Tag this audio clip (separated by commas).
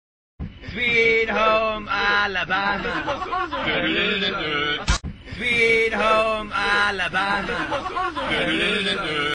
Male singing, Choir